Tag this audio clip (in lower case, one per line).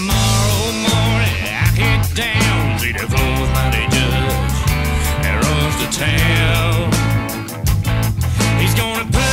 music
rhythm and blues
blues